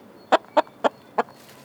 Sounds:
chicken, animal, fowl, livestock

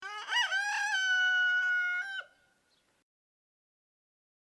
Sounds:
livestock, animal, chicken, fowl

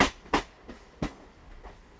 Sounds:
rail transport, vehicle, train

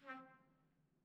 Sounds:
trumpet, brass instrument, musical instrument, music

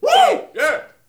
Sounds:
human group actions, cheering

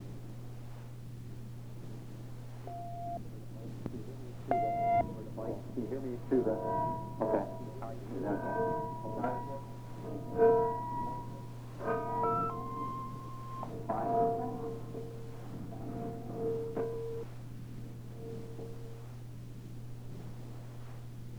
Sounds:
alarm, telephone

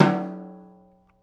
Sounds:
percussion, drum, musical instrument, music

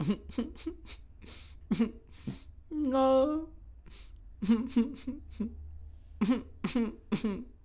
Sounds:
human voice

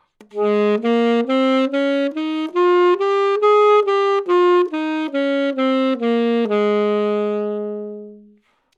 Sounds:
musical instrument, wind instrument, music

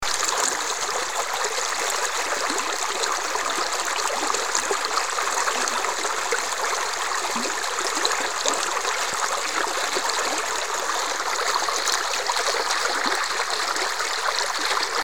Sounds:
water, stream

